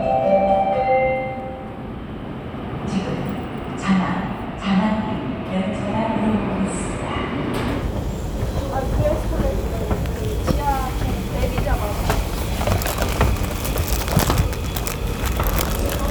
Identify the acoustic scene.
subway station